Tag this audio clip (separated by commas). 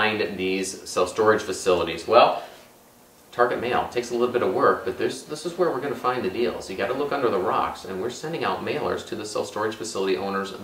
inside a small room, Speech